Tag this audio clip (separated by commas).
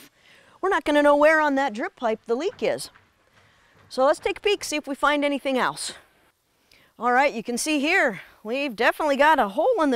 Speech